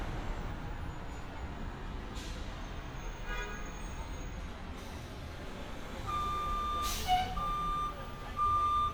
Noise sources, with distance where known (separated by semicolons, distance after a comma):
car horn, far; reverse beeper, near